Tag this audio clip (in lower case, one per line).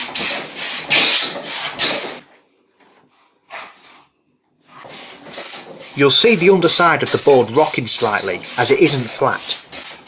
speech
tools